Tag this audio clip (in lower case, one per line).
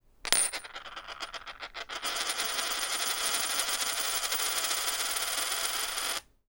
coin (dropping)
home sounds